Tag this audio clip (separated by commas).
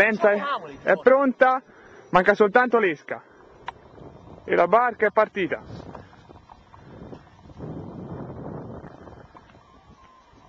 Speech